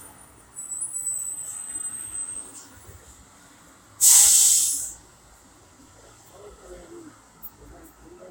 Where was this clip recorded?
on a street